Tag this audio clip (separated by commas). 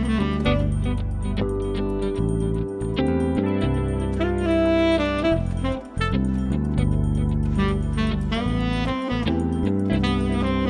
Music